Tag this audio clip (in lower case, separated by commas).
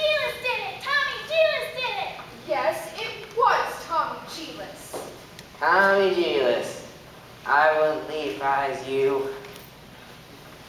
speech